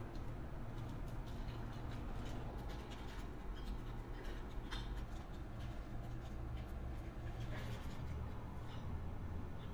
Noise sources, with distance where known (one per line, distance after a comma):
non-machinery impact